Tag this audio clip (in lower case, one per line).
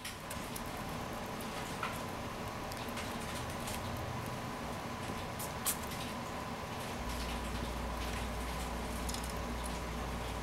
mouse pattering
patter